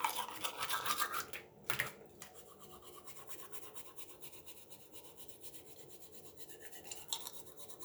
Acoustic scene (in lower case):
restroom